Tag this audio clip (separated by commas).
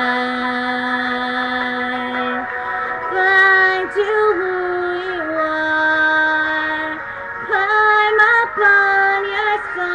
Music, Female singing